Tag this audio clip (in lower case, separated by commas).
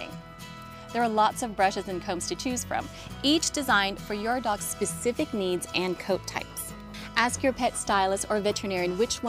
speech, music